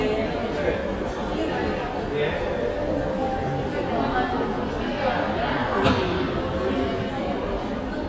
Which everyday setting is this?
crowded indoor space